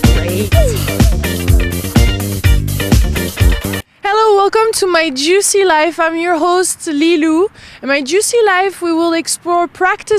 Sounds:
Music, Speech

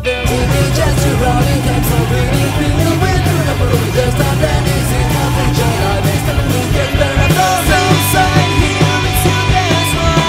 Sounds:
Music

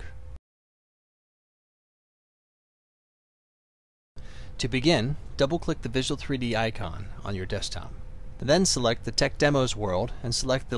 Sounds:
Speech

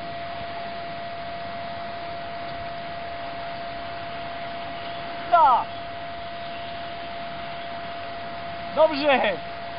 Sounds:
Speech

